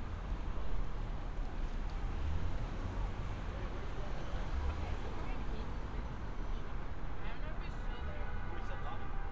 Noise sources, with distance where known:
car horn, far; person or small group talking, far

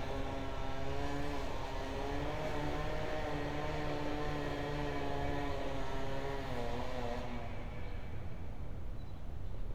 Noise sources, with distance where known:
chainsaw

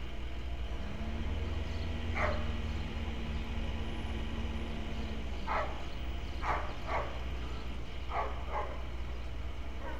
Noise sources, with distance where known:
dog barking or whining

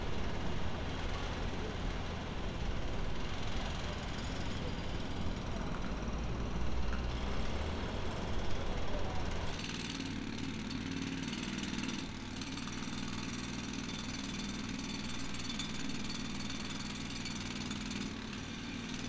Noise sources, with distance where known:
jackhammer

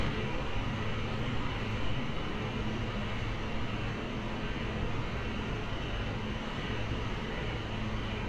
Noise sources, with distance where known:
engine of unclear size

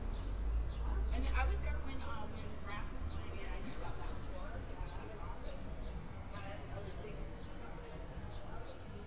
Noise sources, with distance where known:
background noise

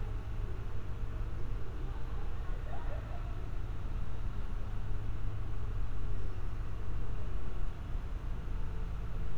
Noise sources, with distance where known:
unidentified human voice

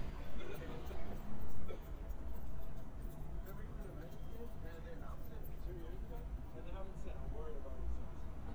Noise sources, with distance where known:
background noise

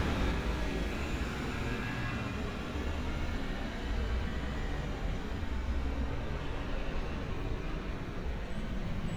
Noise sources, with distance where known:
large-sounding engine

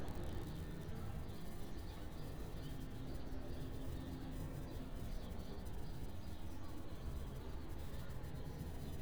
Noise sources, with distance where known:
background noise

